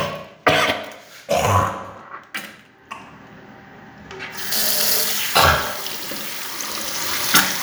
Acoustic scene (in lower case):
restroom